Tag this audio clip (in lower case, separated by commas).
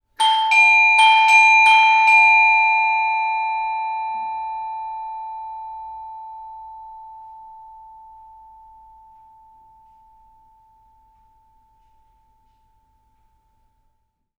door, alarm, doorbell, domestic sounds